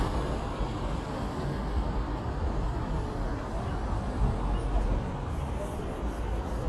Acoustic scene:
street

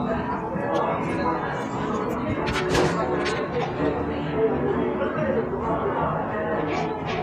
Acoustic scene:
cafe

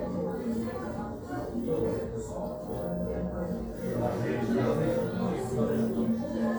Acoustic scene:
crowded indoor space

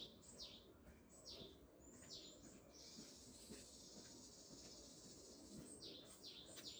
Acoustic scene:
park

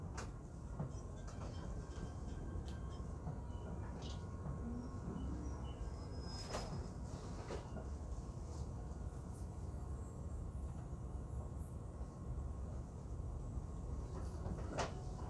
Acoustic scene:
subway train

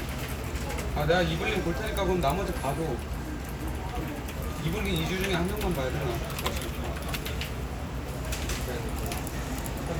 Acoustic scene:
crowded indoor space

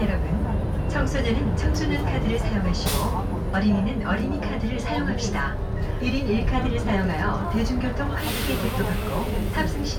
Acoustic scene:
bus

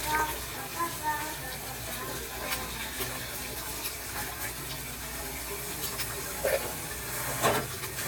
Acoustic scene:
kitchen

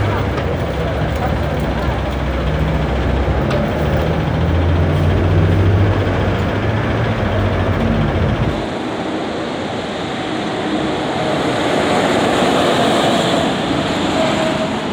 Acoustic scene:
street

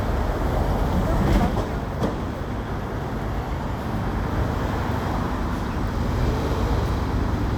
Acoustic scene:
street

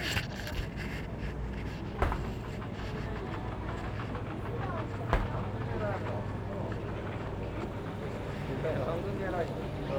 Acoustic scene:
crowded indoor space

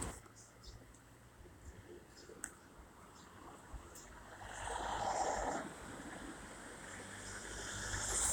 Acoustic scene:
street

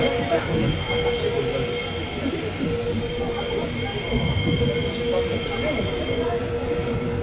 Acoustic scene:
subway train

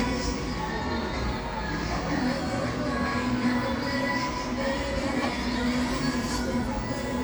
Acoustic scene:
cafe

